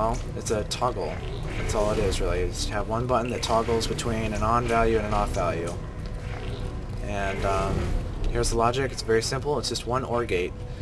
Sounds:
music, speech

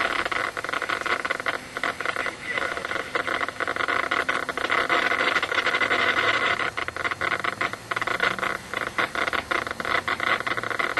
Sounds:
radio, speech

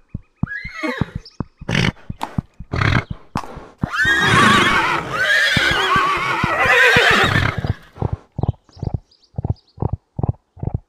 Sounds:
horse neighing

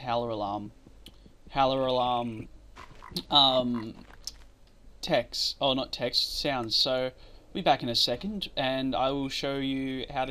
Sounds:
speech

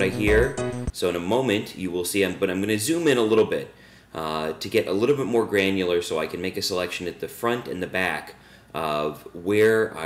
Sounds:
music, speech

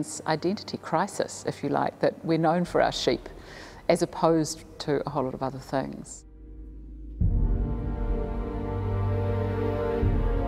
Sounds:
speech, music

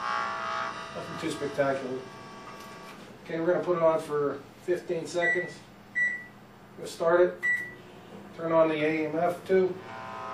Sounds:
microwave oven, speech

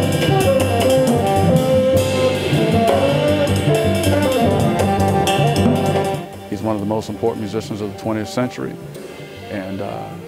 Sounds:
music, speech

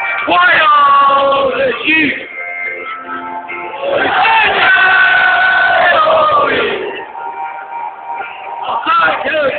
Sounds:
music, speech

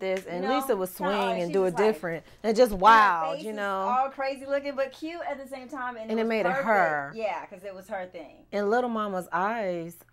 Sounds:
speech

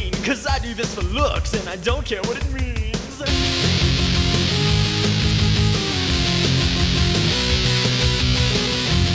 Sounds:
punk rock, music

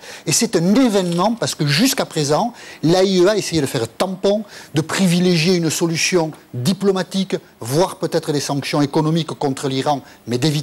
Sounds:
speech

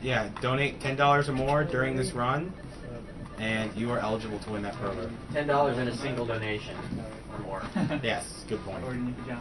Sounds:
speech

